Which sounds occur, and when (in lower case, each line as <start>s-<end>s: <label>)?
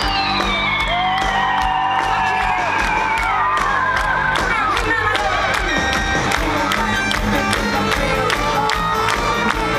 0.0s-4.8s: cheering
0.0s-9.7s: crowd
0.0s-9.7s: music
4.7s-5.8s: male speech
9.5s-9.7s: male singing